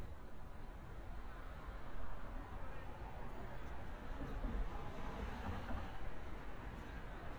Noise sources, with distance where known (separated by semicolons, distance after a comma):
medium-sounding engine, far; person or small group talking, far